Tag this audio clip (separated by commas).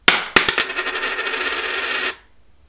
Coin (dropping), home sounds